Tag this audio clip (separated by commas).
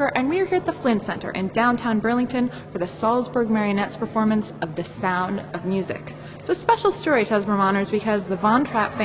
Speech